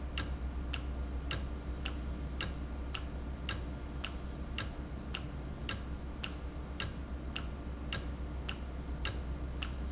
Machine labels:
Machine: valve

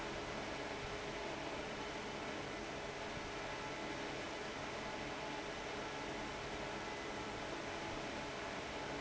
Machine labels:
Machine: fan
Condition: abnormal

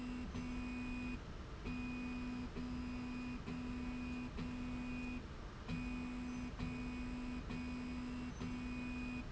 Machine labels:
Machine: slide rail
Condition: normal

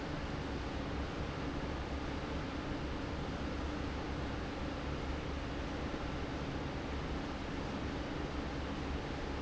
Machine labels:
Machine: fan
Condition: normal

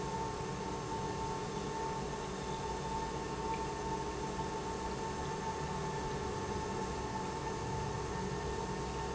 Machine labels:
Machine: pump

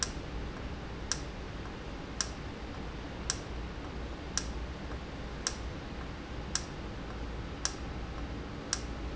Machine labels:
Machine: valve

